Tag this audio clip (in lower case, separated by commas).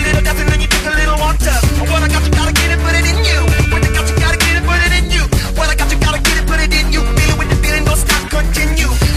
music, electronic music, dubstep